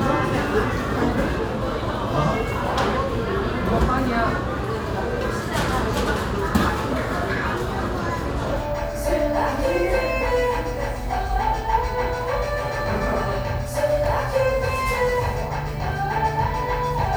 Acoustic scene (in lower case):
cafe